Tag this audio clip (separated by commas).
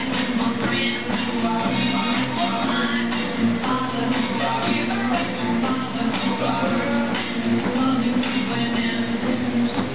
Music